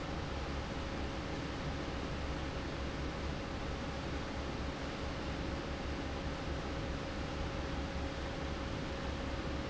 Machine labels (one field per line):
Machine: fan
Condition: normal